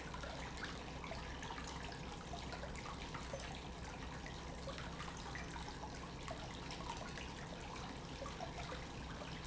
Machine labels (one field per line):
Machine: pump